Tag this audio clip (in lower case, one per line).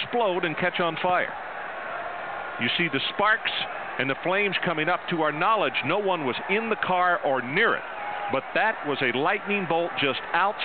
speech